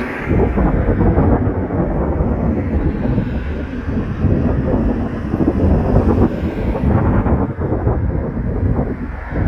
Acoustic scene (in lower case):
street